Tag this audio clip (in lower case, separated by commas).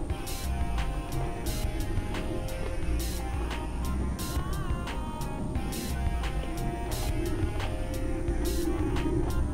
music